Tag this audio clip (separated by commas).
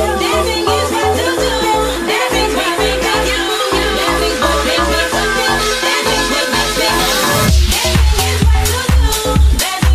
people shuffling